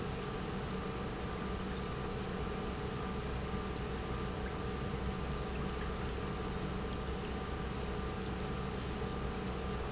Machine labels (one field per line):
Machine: pump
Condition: normal